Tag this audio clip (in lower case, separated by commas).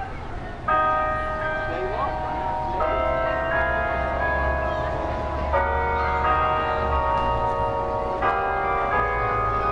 music, speech